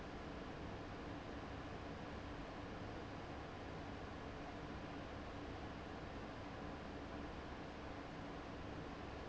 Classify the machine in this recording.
fan